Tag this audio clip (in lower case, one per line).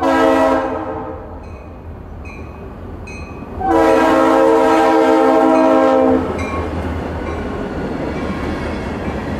train horning